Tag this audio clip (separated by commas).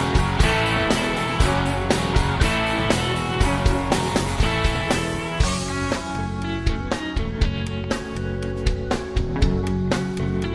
Music